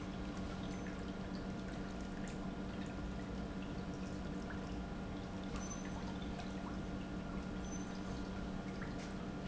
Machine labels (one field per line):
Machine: pump